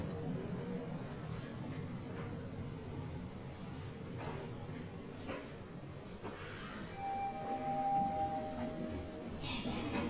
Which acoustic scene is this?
elevator